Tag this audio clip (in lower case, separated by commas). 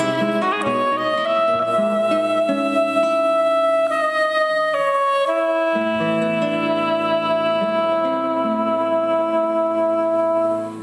brass instrument, clarinet